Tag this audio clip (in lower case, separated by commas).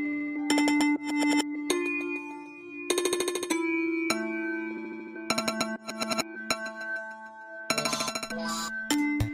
music, speech